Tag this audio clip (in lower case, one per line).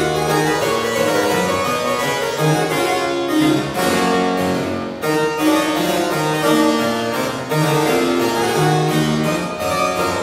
harpsichord
music